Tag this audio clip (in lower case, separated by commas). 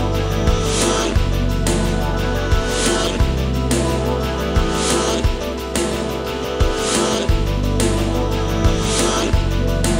music, background music